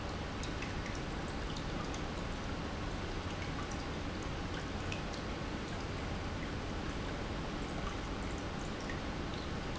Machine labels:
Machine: pump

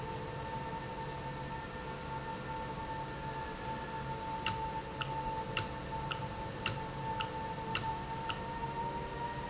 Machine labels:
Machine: valve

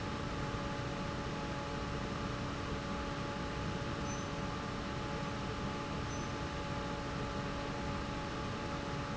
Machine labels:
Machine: fan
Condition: normal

